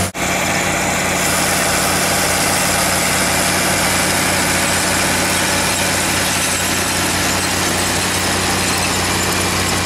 A large vehicle is vibrating outside and a low squeak is squeaking